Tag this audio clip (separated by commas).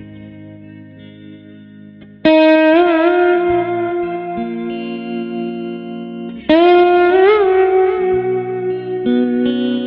slide guitar